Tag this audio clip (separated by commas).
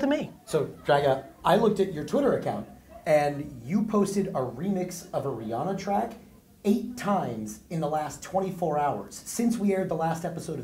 Speech